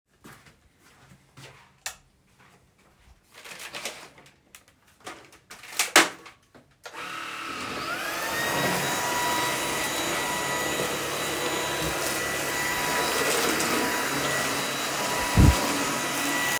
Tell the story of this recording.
I walked into the room and turned on the light. I switched on the vacuum cleaner and began vacuuming the floor while moving around the room.